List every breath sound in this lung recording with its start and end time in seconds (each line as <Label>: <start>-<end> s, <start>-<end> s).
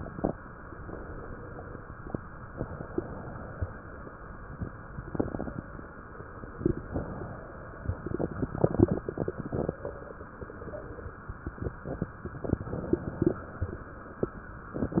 Inhalation: 6.83-7.87 s